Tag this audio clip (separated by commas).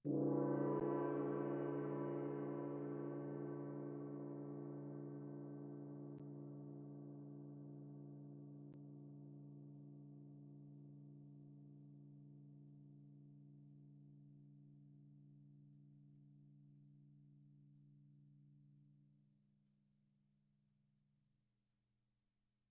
Percussion, Gong, Music, Musical instrument